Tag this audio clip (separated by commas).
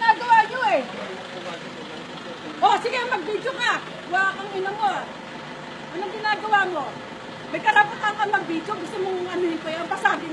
Speech